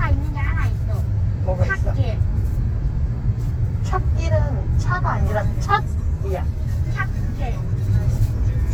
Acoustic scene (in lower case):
car